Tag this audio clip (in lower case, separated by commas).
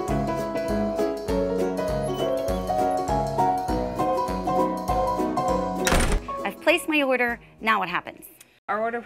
music, speech